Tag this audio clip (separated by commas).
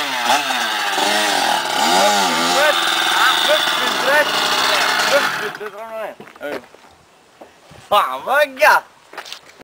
Speech